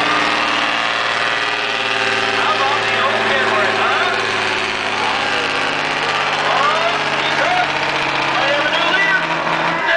Vehicle engine with a male voice